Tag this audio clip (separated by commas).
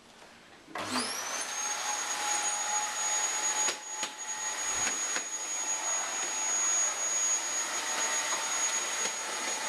Vacuum cleaner